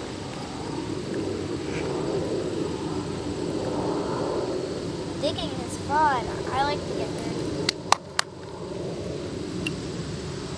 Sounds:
Child speech, Speech

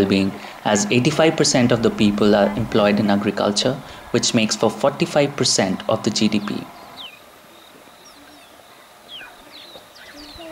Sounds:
outside, rural or natural, Speech

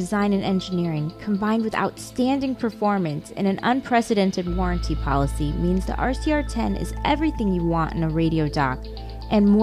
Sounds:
Speech, Music

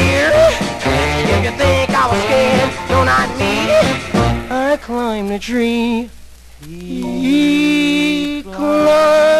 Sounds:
Music, Rock and roll

